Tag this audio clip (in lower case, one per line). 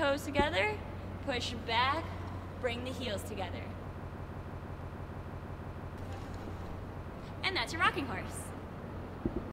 speech